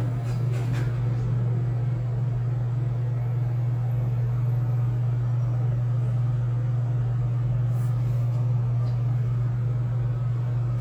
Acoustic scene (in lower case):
elevator